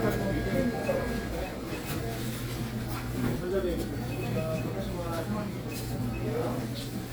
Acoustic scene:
crowded indoor space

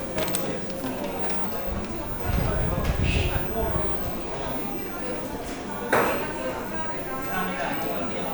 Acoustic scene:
cafe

